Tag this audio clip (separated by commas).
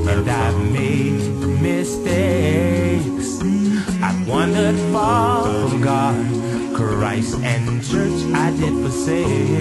Music